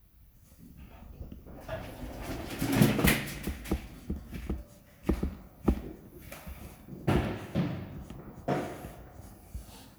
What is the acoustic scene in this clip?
elevator